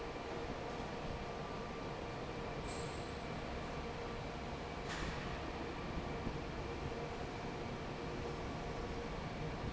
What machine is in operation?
fan